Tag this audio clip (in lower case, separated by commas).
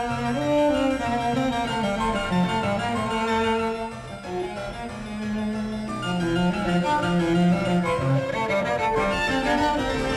bowed string instrument, violin